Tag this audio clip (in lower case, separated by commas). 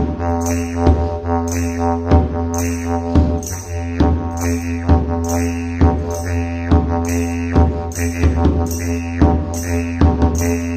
playing didgeridoo